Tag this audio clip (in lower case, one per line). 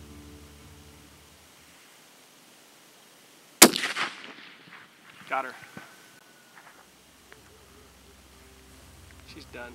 music
outside, rural or natural
speech